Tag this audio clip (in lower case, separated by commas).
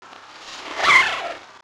domestic sounds, zipper (clothing)